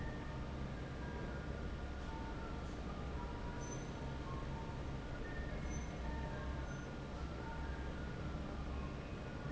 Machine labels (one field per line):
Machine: fan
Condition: normal